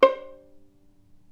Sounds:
bowed string instrument
musical instrument
music

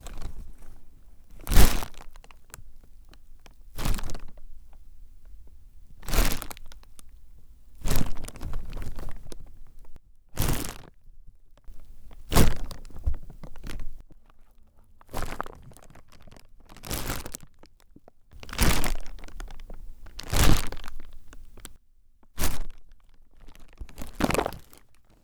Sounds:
crumpling

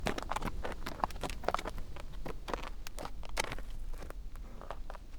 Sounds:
animal
livestock

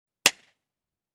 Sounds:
clapping
hands

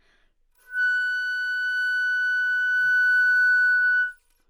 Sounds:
music
musical instrument
wind instrument

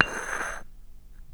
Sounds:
domestic sounds
dishes, pots and pans

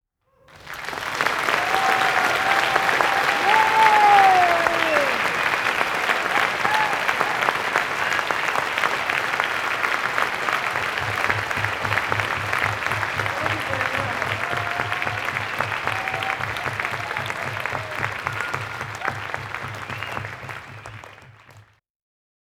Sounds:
human group actions
applause

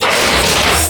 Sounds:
vehicle

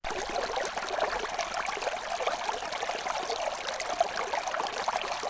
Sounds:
stream
water

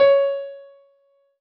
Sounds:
music
musical instrument
piano
keyboard (musical)

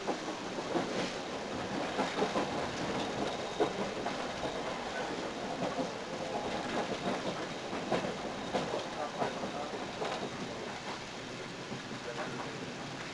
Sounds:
train
rail transport
vehicle

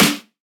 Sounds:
music
snare drum
musical instrument
drum
percussion

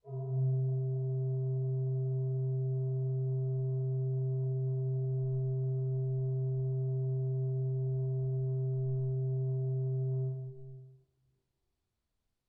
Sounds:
musical instrument
music
keyboard (musical)
organ

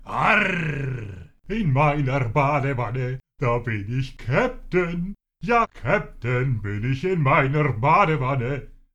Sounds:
human voice
singing

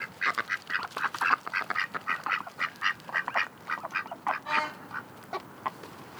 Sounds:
animal
livestock
wild animals
fowl
bird

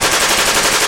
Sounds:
gunfire
explosion

